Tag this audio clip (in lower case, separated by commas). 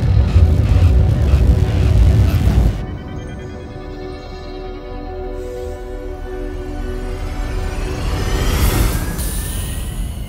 music